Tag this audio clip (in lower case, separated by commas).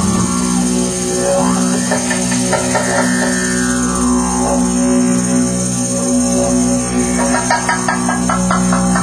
music, drum, didgeridoo